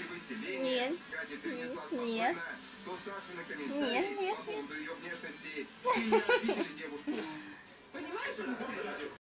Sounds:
Meow, Speech

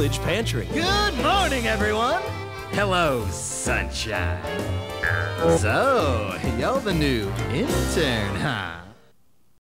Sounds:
Speech, Music

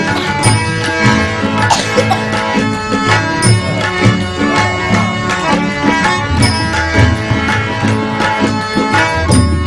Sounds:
Music

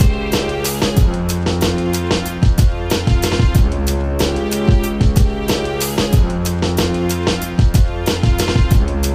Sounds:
Music

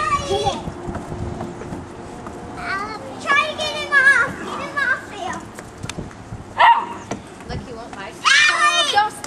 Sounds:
outside, urban or man-made, Speech, pets, canids, Dog, Animal

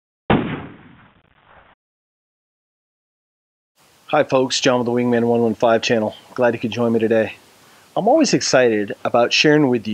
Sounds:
Speech

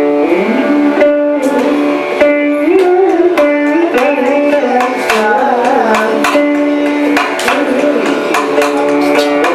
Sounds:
Music, Musical instrument, Carnatic music, Tabla, Classical music

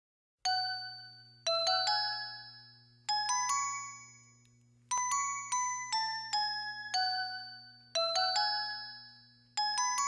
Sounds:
xylophone, Glockenspiel, Mallet percussion

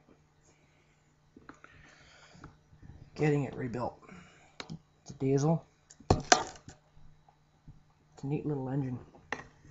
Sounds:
Speech

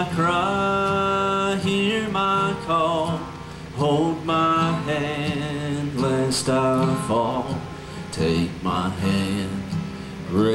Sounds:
Male singing, Music

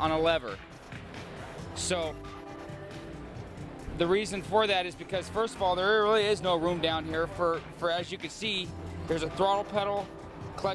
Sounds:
Music, Speech

